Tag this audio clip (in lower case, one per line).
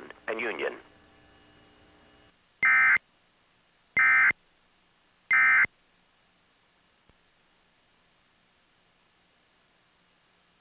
speech